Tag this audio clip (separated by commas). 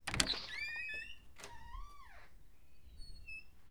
Squeak